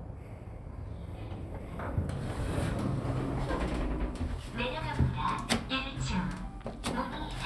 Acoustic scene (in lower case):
elevator